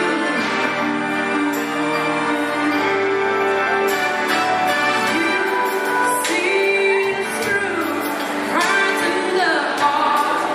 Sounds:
Singing

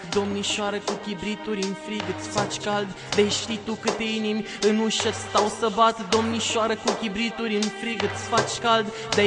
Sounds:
Music

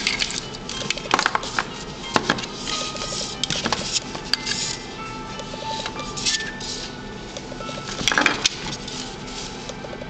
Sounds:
Music

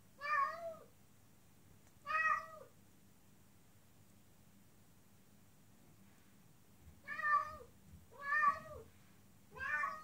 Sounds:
cat caterwauling

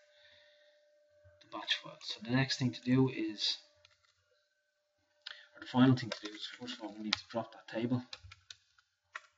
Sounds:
Speech, Clicking

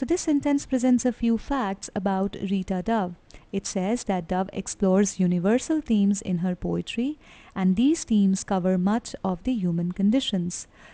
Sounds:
Speech

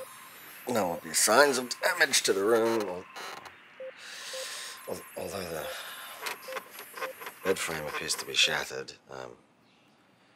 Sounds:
Speech

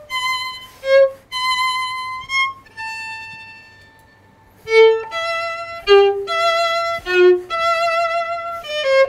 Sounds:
Violin, Musical instrument, Music

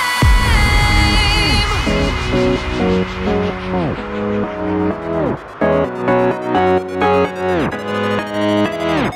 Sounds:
Music

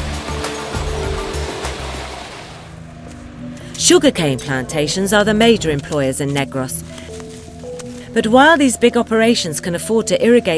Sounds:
Music, Speech

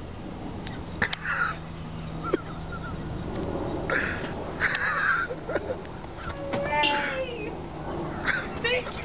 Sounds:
Vehicle, Speech

